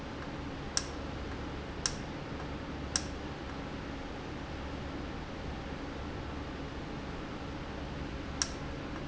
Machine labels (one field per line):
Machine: valve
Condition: normal